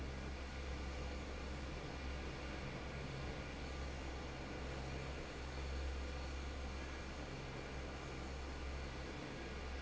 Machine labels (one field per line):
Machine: fan